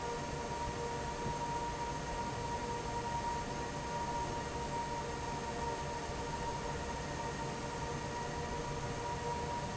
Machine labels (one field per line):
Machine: fan